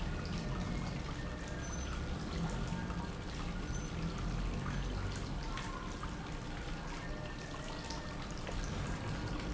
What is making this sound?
pump